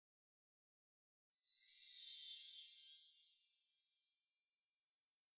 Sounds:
bell, chime

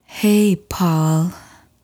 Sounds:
woman speaking, human voice, speech

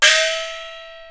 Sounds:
percussion, musical instrument, music, gong

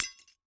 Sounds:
glass, shatter

